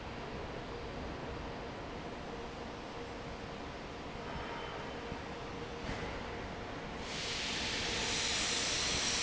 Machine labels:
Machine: fan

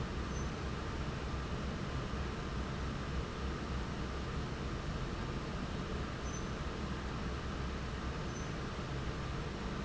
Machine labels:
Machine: fan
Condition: normal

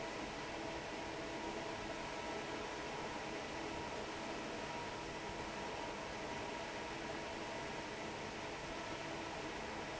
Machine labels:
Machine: fan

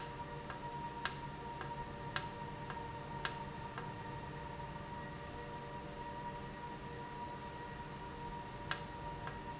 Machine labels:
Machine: valve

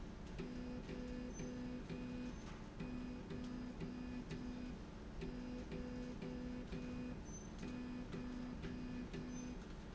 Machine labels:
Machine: slide rail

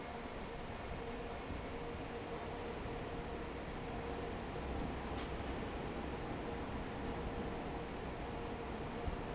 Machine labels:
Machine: fan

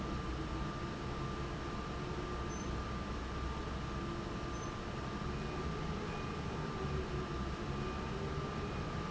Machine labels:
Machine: fan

